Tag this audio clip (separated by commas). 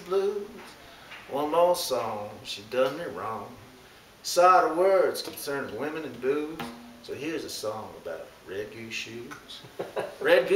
Speech